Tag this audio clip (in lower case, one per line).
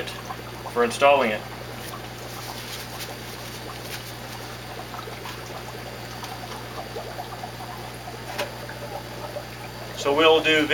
speech